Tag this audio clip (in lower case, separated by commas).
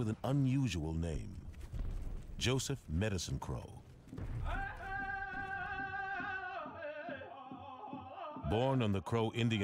music, speech